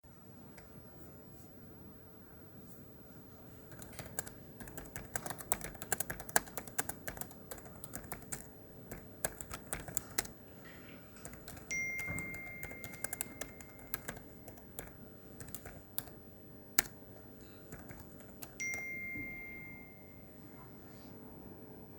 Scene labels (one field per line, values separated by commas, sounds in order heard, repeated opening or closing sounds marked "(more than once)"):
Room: office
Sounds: keyboard typing, phone ringing